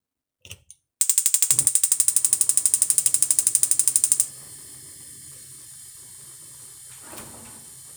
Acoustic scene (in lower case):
kitchen